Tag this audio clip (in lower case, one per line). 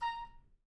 musical instrument
woodwind instrument
music